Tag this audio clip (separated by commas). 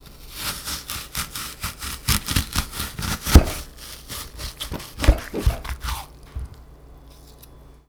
Domestic sounds